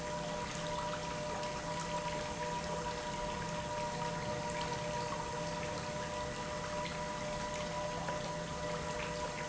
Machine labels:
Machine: pump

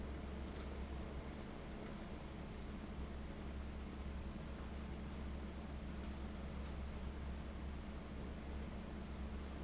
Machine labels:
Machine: fan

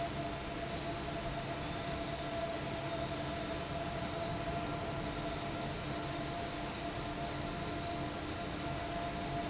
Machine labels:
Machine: fan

